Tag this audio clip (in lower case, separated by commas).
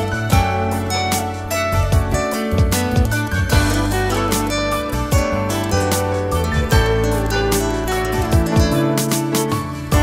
music, sad music